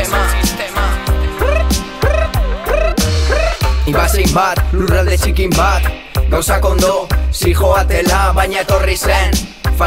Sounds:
music

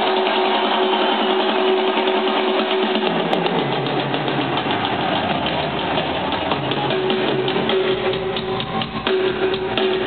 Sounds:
musical instrument, drum kit, music, bass drum, drum

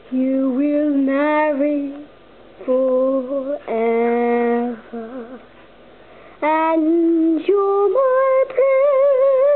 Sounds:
female singing

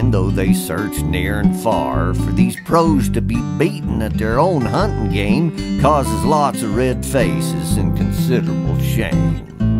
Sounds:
music, speech

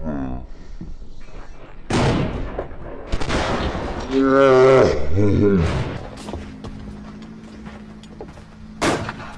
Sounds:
gunshot

